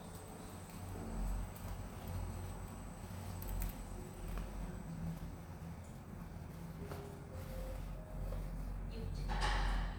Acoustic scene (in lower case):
elevator